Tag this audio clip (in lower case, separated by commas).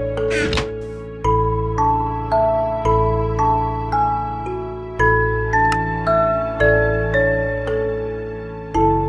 music